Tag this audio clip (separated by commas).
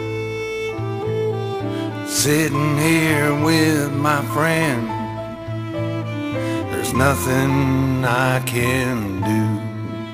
Music, Blues